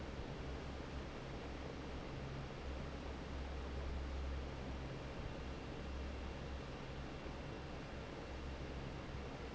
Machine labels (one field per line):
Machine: fan